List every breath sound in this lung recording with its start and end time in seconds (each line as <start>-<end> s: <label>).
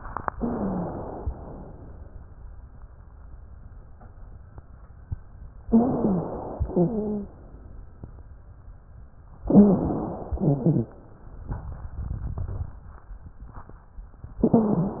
0.32-1.20 s: inhalation
0.38-0.91 s: wheeze
1.27-2.15 s: exhalation
5.67-6.55 s: inhalation
5.67-6.55 s: wheeze
6.62-7.34 s: wheeze
6.62-7.50 s: exhalation
9.51-10.19 s: wheeze
9.51-10.34 s: inhalation
10.36-11.04 s: exhalation
10.36-11.04 s: wheeze